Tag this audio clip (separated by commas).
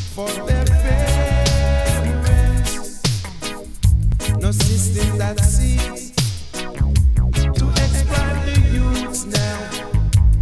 Music, Reggae